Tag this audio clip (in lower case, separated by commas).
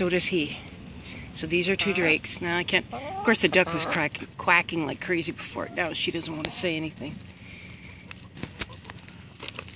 speech, quack, duck